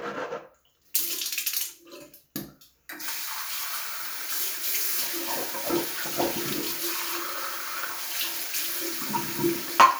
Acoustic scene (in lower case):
restroom